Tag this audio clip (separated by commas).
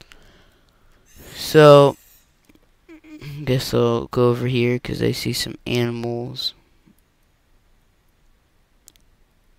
Speech